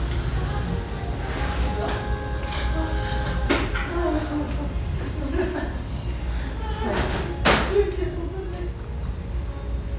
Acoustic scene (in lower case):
restaurant